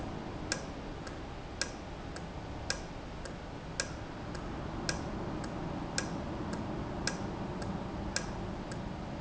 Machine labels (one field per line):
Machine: valve